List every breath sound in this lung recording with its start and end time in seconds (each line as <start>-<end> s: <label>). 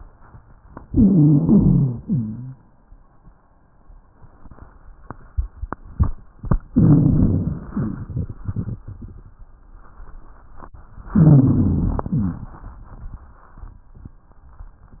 0.84-1.98 s: inhalation
0.84-1.98 s: wheeze
2.01-2.62 s: exhalation
2.01-2.62 s: wheeze
6.74-7.74 s: inhalation
6.74-7.74 s: wheeze
7.74-8.41 s: exhalation
7.74-8.41 s: wheeze
11.12-12.12 s: inhalation
11.12-12.12 s: wheeze
12.12-12.64 s: exhalation
12.16-12.68 s: wheeze